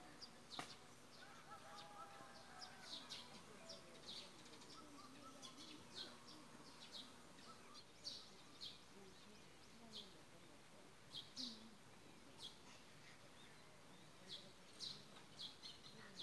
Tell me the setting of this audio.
park